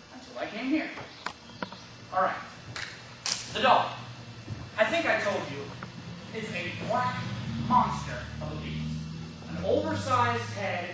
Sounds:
speech
narration

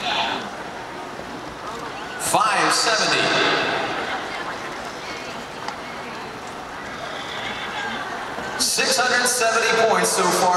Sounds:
speech

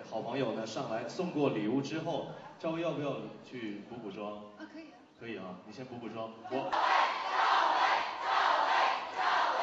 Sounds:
speech

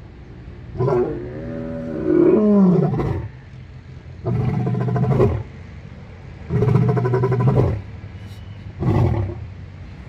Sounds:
lions roaring

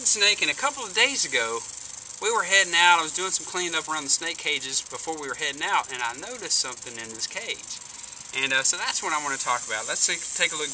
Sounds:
snake

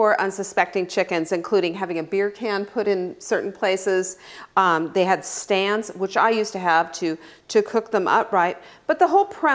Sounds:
speech

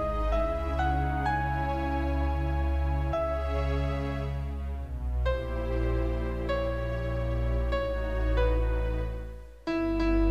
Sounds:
music
sad music

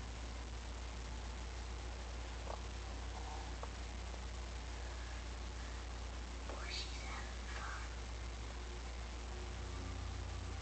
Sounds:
speech

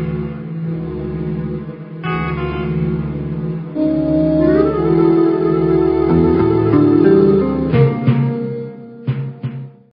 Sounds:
music

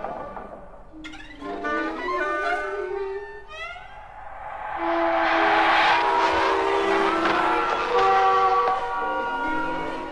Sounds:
music

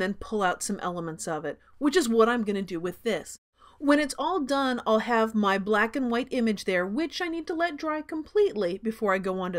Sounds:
speech

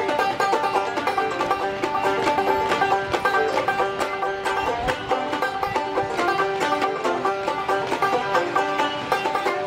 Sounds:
music

